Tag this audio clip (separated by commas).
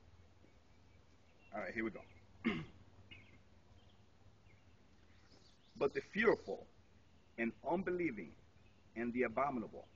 outside, rural or natural, Speech